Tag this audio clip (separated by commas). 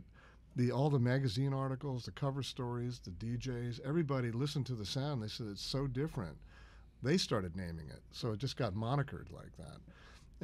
Speech